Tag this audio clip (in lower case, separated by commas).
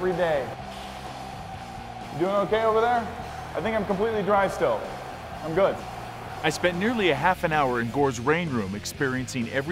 speech, music